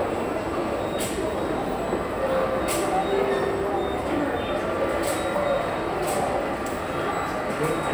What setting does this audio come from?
subway station